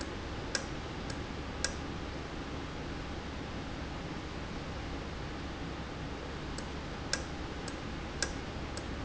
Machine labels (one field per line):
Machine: valve